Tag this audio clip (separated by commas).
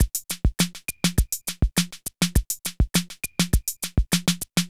Percussion, Drum kit, Music, Musical instrument